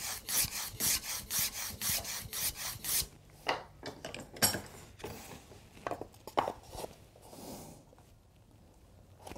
Fast wood scraping and older man speaking